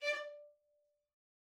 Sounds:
musical instrument, bowed string instrument, music

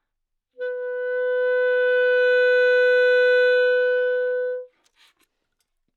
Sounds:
musical instrument, music, woodwind instrument

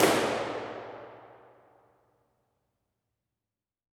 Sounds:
hands, clapping

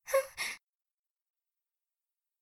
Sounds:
respiratory sounds, gasp, breathing

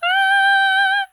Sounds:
singing, human voice, female singing

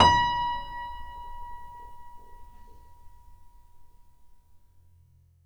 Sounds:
piano, keyboard (musical), musical instrument, music

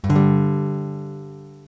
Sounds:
strum, acoustic guitar, guitar, plucked string instrument, music, musical instrument

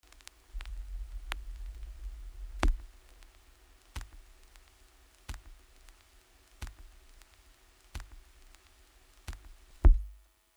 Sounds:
crackle

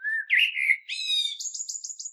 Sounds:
bird, animal, wild animals

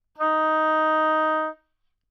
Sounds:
wind instrument, music, musical instrument

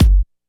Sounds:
bass drum, drum, music, musical instrument, percussion

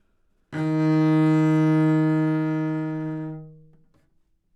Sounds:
bowed string instrument, musical instrument, music

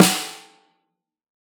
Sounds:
snare drum, drum, music, musical instrument, percussion

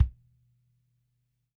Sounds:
bass drum, percussion, musical instrument, music, drum

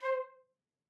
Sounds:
wind instrument, musical instrument, music

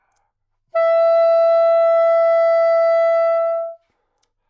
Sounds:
woodwind instrument, musical instrument, music

